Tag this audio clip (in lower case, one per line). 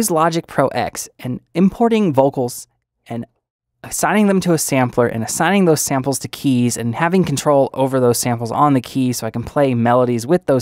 speech